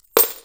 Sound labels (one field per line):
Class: object falling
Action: being thrown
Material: metal